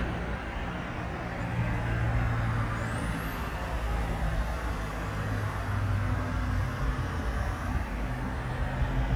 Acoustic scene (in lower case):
street